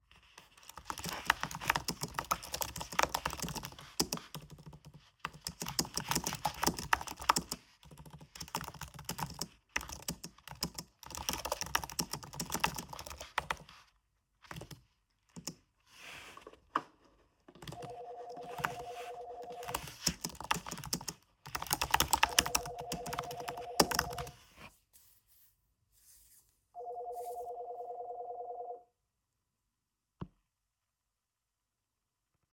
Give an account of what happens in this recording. I sat down at my desk and started typing on the keyboard. Then I received a phone call.